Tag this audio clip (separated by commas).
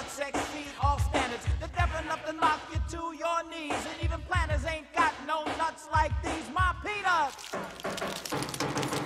Music, Blues